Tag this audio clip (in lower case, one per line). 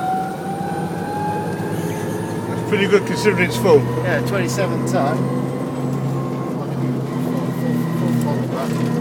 vehicle
speech